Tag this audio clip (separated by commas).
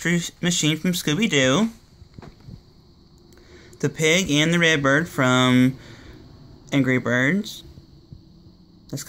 Speech